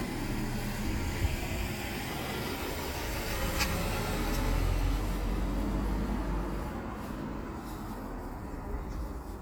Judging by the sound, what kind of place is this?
residential area